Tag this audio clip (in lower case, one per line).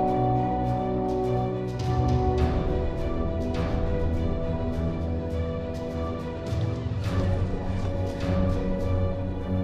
music